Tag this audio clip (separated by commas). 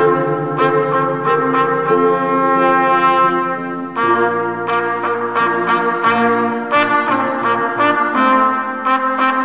playing trumpet